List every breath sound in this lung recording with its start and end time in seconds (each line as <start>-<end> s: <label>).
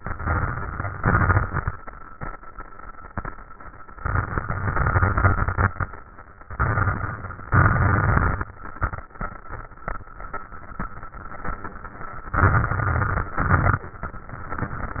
0.00-0.97 s: inhalation
0.00-0.97 s: crackles
1.00-1.72 s: exhalation
1.00-1.72 s: crackles
3.98-5.66 s: inhalation
3.98-5.66 s: crackles
6.53-7.52 s: inhalation
6.53-7.52 s: crackles
7.53-8.52 s: exhalation
7.53-8.52 s: crackles
12.38-13.37 s: inhalation
12.38-13.37 s: crackles
13.38-13.95 s: exhalation
13.38-13.95 s: crackles